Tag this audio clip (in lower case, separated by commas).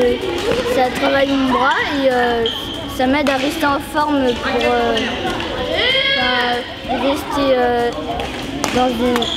playing badminton